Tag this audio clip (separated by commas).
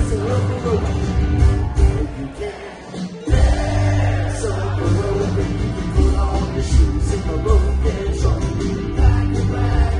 Crowd